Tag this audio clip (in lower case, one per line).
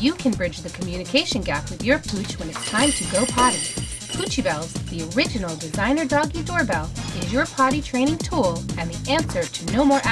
music
speech